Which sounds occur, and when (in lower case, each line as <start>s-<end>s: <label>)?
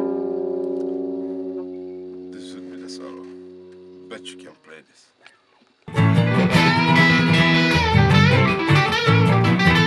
0.0s-4.6s: music
2.3s-3.4s: male speech
4.0s-5.4s: male speech
4.5s-5.9s: background noise
5.8s-9.8s: music